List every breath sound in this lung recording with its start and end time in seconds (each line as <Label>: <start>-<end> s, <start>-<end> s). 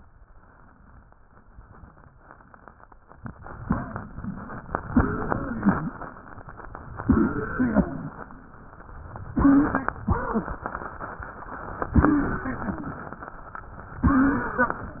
Inhalation: 3.58-4.82 s, 5.95-7.05 s, 8.29-9.29 s, 10.73-11.85 s, 13.28-14.02 s
Exhalation: 4.88-5.96 s, 7.07-8.29 s, 9.31-10.67 s, 11.94-13.29 s, 14.02-15.00 s
Wheeze: 4.88-5.96 s, 7.07-7.95 s, 9.31-10.67 s, 11.94-13.05 s, 14.02-15.00 s